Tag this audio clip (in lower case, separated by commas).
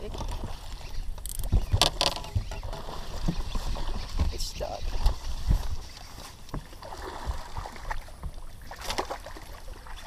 speech